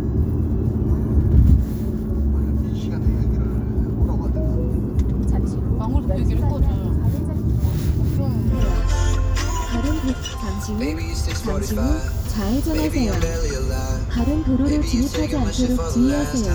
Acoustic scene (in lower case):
car